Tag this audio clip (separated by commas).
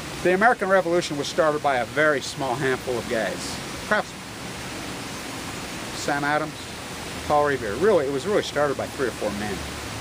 Speech, outside, rural or natural